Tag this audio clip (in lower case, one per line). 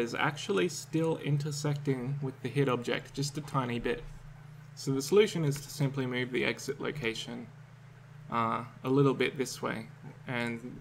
speech